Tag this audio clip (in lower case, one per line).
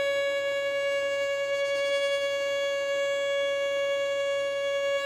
music
bowed string instrument
musical instrument